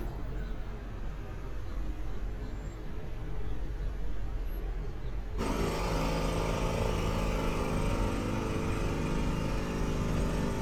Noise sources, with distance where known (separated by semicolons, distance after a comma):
jackhammer